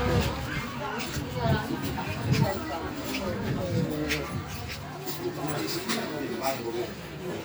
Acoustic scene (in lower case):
park